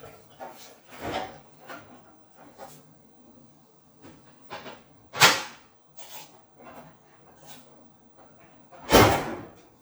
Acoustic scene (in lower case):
kitchen